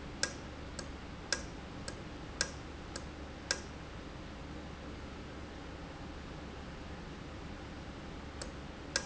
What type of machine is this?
valve